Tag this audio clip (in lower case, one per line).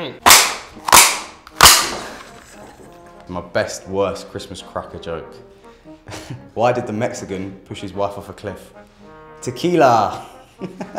music
speech